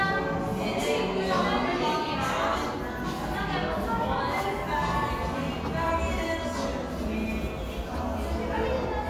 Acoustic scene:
cafe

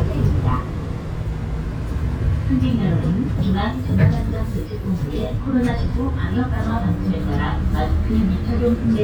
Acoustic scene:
bus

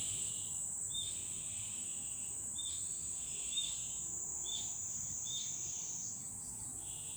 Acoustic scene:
park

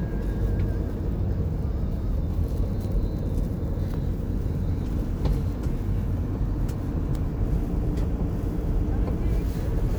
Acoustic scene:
car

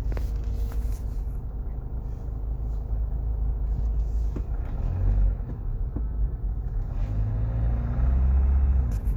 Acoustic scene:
car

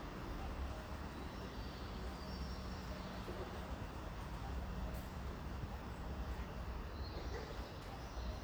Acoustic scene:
residential area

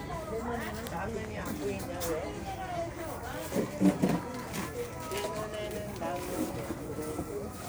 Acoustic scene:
crowded indoor space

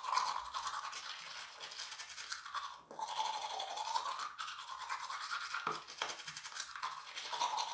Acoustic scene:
restroom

